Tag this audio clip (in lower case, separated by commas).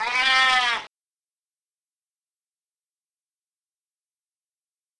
pets, animal, cat, meow